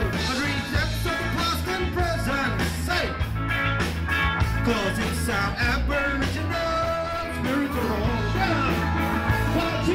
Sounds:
ska
music
singing

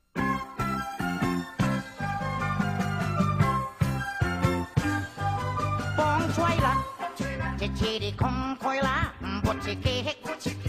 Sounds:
music

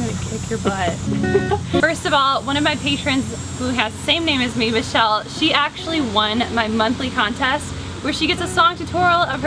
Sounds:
guitar
speech
musical instrument
music
plucked string instrument
strum

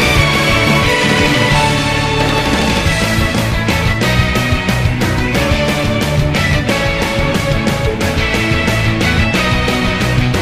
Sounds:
music

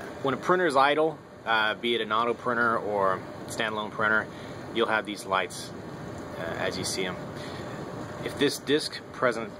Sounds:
speech

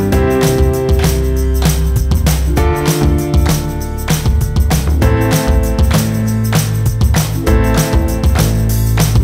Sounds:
music

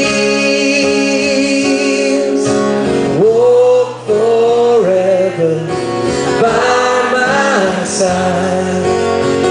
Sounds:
music

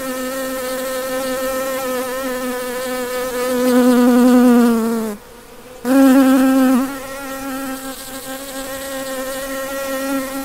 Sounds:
housefly buzzing

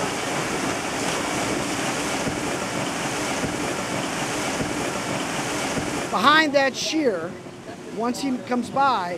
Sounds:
speech

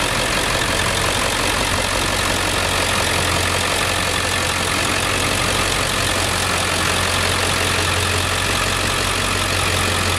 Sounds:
vehicle

